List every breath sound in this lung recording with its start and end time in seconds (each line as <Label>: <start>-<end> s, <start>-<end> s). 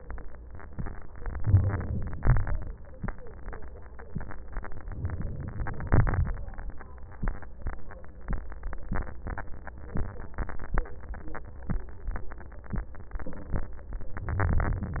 Inhalation: 1.43-2.25 s, 4.93-5.88 s, 14.15-14.99 s
Exhalation: 2.19-3.02 s, 5.89-6.50 s
Crackles: 2.25-3.00 s, 5.89-6.50 s